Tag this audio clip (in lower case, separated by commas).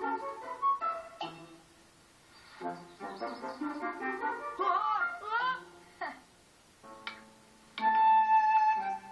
inside a small room, music